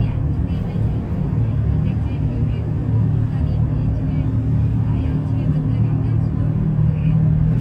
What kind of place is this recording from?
bus